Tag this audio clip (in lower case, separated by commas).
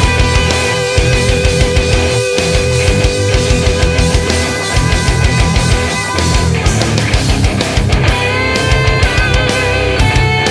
progressive rock, music